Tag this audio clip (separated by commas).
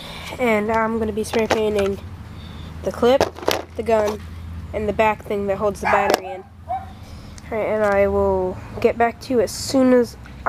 Speech